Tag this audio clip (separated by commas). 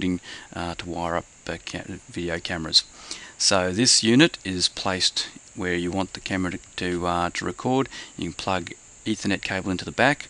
Speech